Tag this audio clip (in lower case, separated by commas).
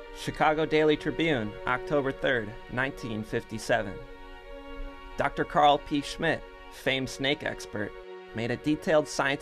speech, music